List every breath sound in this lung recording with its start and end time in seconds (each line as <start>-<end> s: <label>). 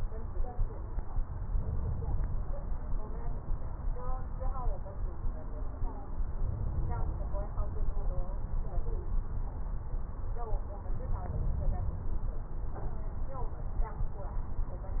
1.32-2.23 s: inhalation
6.27-7.18 s: inhalation
11.28-12.19 s: inhalation